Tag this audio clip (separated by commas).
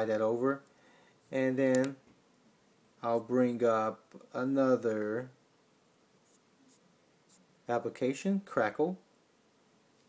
Speech